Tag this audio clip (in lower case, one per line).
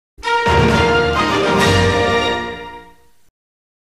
music